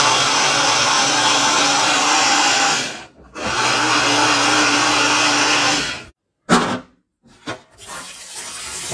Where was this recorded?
in a kitchen